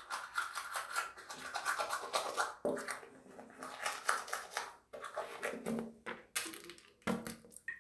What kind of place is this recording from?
restroom